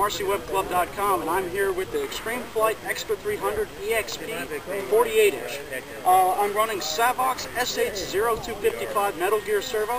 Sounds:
Speech

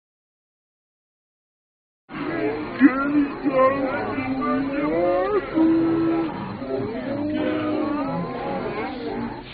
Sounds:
Speech

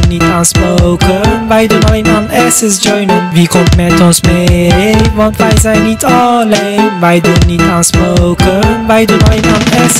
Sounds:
Music

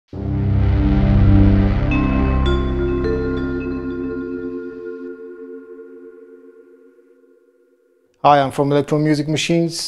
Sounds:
Synthesizer, Speech, Music

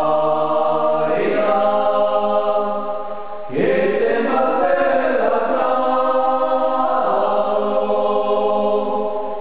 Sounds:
Mantra

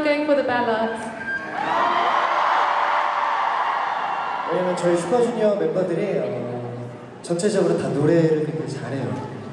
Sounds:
Female speech, Speech, man speaking, Conversation

